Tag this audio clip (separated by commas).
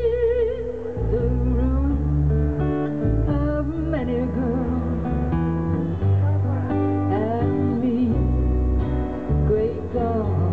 Music